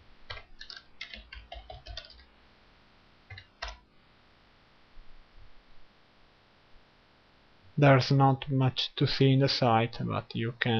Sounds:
speech

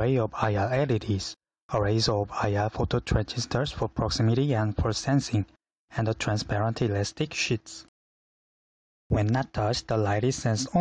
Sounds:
speech

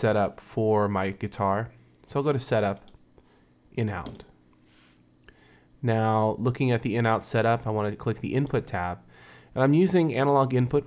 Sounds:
speech

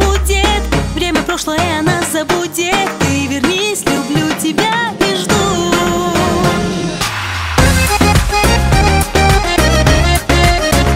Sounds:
music
exciting music

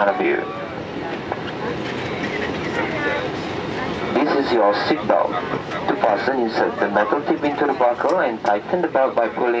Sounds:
vehicle
speech
engine

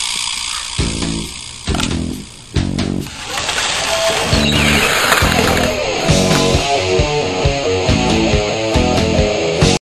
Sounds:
music

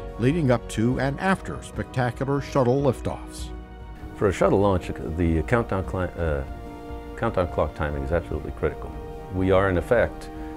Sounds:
speech
music

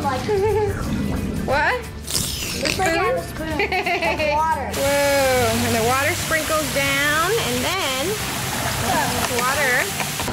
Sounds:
splashing water

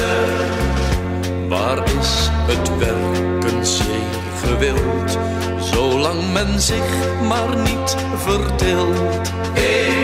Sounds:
music

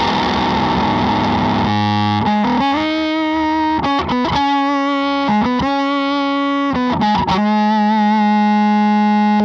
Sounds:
distortion
effects unit
musical instrument
plucked string instrument
guitar
music

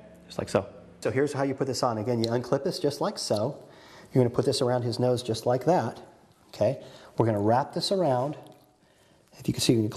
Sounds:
speech

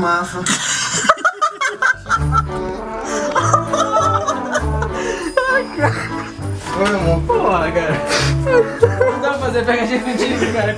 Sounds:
people sneezing

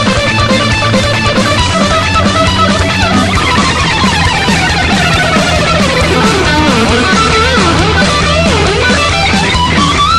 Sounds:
music
guitar
musical instrument
strum
electric guitar

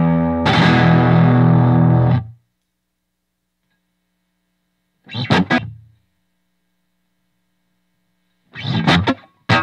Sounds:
guitar
effects unit
music
humming
plucked string instrument

